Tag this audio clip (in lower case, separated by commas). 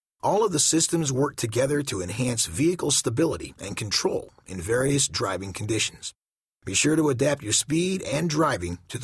speech